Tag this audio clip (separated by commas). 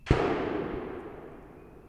Explosion, Gunshot